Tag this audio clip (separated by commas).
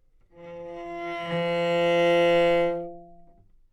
Music, Musical instrument, Bowed string instrument